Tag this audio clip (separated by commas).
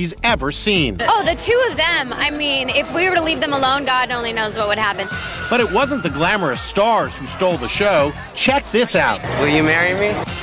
Speech, Music